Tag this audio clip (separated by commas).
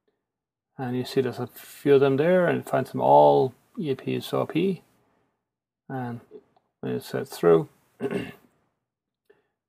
Speech